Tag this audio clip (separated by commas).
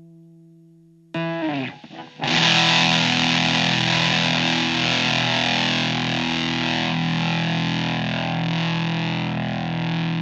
Sound effect